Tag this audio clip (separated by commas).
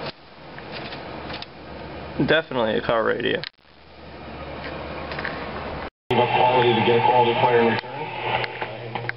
inside a small room, Radio, Speech